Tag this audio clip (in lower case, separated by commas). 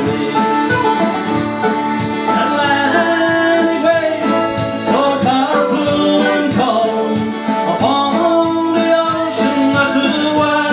music